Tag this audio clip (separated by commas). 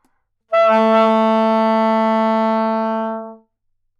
Wind instrument, Music, Musical instrument